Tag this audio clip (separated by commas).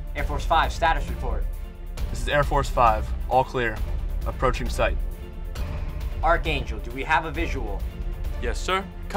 Music, Speech